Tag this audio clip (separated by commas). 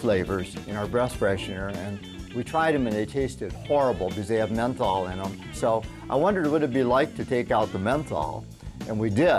Music, Speech